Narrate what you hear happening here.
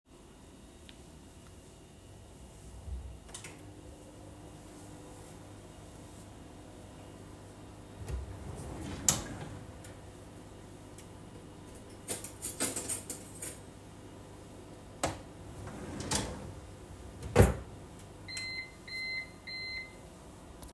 I started the microwave with food inside. While the microwave was still running, I opened a kitchen drawer and took out a fork and knife, letting them clink together. I closed the drawer and waited for the microwave to beep and finish.